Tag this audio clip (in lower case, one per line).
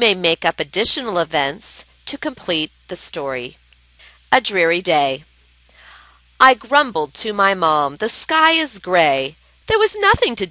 speech